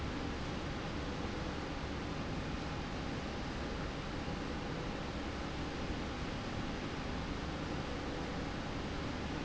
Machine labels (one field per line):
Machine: slide rail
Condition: normal